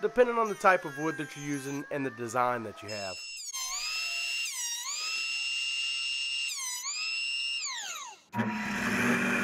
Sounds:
speech

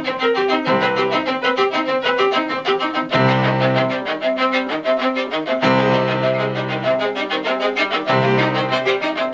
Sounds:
music
musical instrument
violin
fiddle

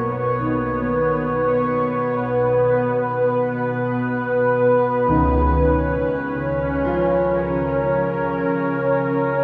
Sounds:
ambient music
music

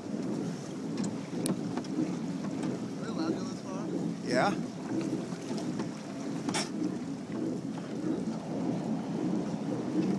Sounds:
water vehicle
vehicle
speech

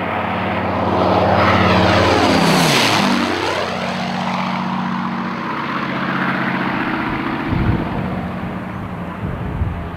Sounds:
airplane flyby

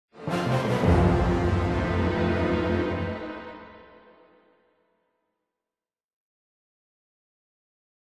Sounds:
music

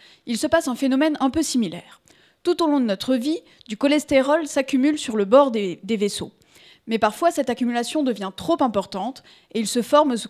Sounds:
speech

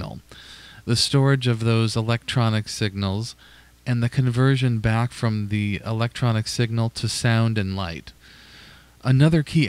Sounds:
speech

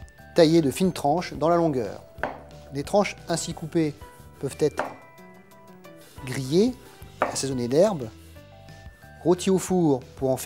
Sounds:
chopping food

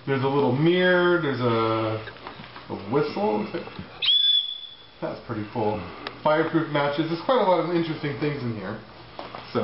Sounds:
speech
inside a small room

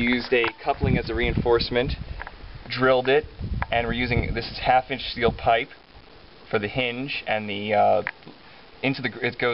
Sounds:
speech

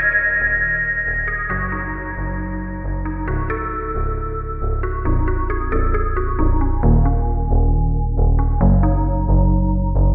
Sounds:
music
background music

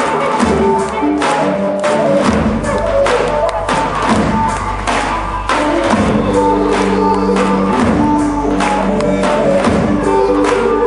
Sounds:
music
techno

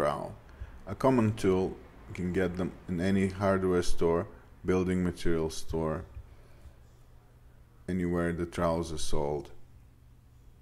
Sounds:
speech

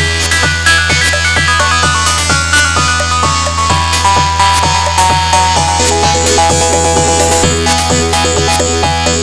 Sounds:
music
soundtrack music

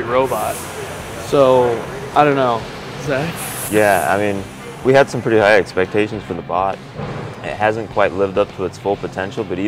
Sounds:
speech

